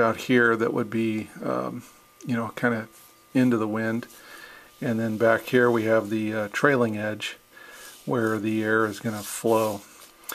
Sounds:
speech

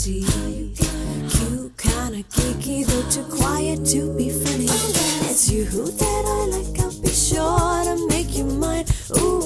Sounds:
music, keys jangling

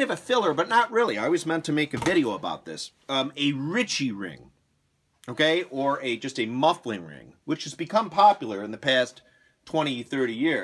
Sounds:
speech

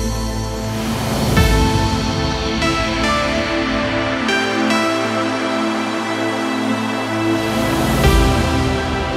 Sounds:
trance music, music

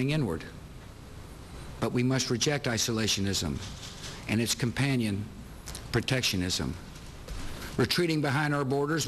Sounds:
speech, narration, man speaking

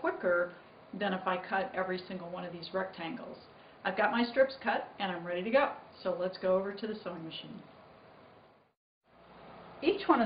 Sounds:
speech

